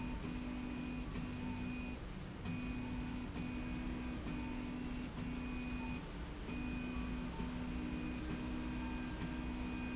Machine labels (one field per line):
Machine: slide rail